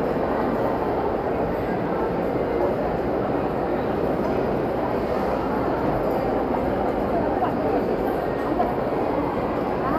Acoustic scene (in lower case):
crowded indoor space